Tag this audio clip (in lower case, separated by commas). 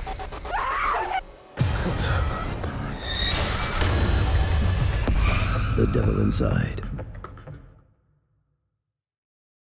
music, speech